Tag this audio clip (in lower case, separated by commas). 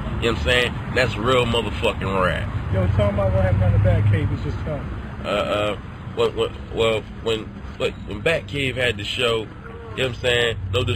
speech